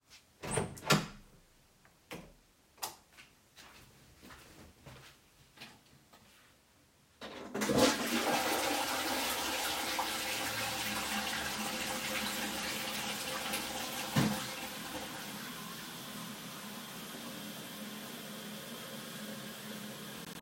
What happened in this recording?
I turned the light on and opened thedoor then flushed the toilet and waited for the water cycle to finish. Then I opened the bathroom door to leave the room.